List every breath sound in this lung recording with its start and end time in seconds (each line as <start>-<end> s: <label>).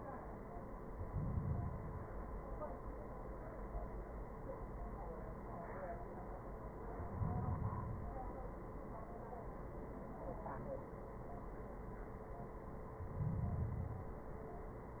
0.86-2.44 s: inhalation
6.95-8.52 s: inhalation
12.87-14.44 s: inhalation